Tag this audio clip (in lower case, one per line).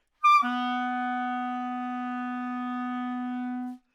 musical instrument
music
wind instrument